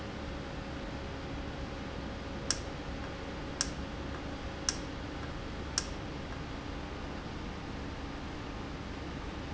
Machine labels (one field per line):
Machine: valve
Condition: normal